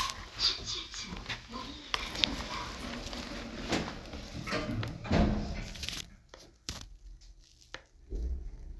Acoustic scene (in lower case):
elevator